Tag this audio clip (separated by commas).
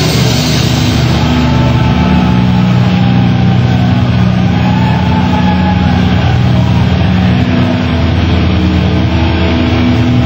Music